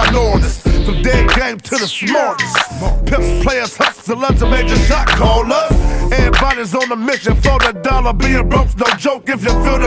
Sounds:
music

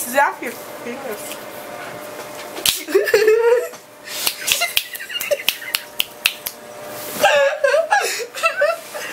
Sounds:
people finger snapping

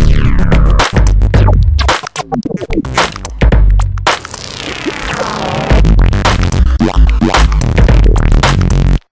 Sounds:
music

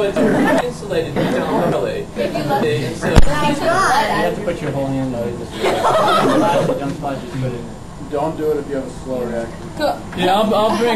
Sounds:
speech
chortle
male speech
woman speaking

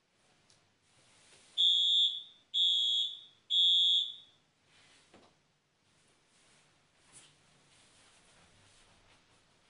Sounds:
buzzer

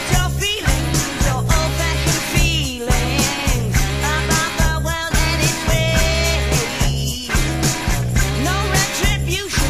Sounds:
funk
music

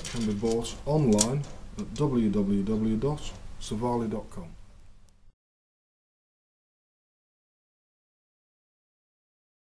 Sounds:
speech

